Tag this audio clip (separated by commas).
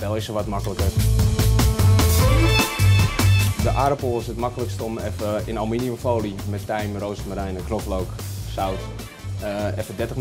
Speech, Music